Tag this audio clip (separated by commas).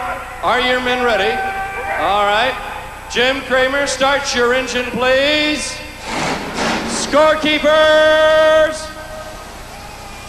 Speech